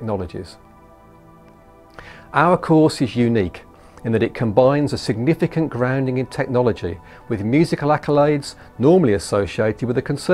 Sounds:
speech
music

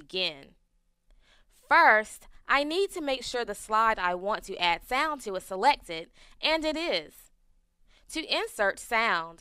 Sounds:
speech

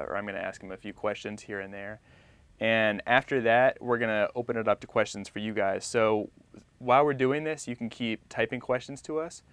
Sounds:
speech

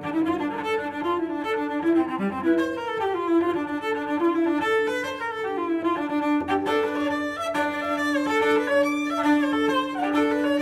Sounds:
playing cello

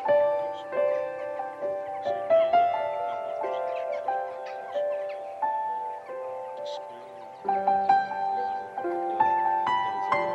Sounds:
music
bird
animal

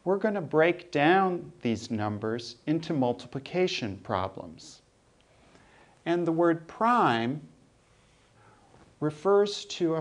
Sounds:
speech

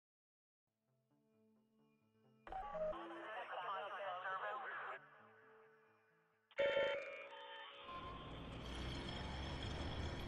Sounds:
speech

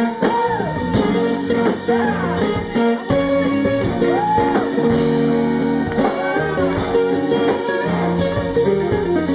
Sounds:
guitar
plucked string instrument
music
strum
musical instrument

